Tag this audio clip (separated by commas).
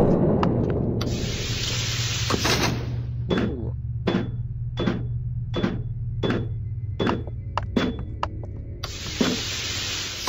Music, inside a large room or hall